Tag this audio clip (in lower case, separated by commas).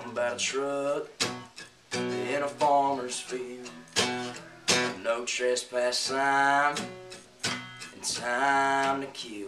music